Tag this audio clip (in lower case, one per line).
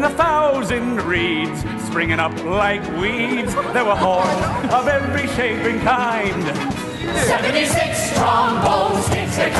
music